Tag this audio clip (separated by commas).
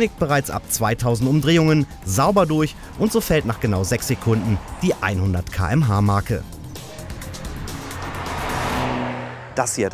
Speech, Music